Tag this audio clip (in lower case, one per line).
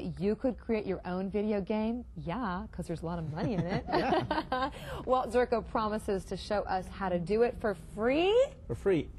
speech